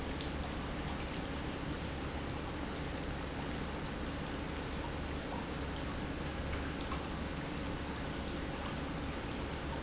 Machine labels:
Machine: pump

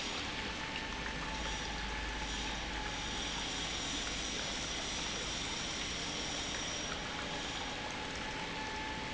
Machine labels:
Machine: pump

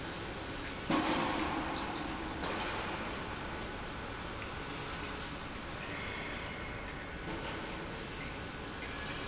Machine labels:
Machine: pump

